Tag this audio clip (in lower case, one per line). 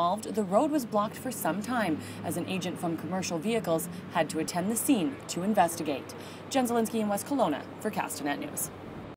vehicle
car
speech